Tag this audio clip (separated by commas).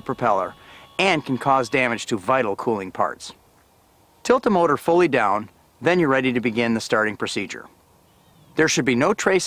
Speech